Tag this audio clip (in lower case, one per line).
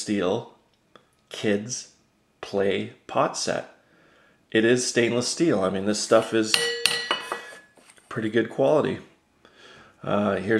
dishes, pots and pans